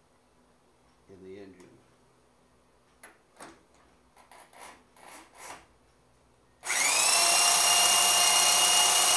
A drill is in use